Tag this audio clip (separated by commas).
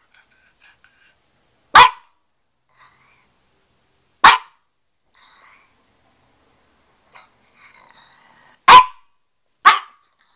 Dog, dog barking, Animal, Bark, pets